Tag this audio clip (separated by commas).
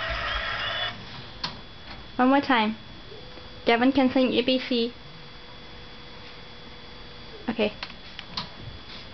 Speech